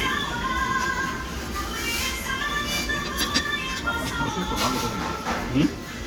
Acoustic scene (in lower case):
restaurant